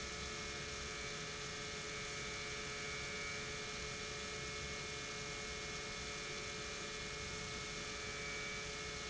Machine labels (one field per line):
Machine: pump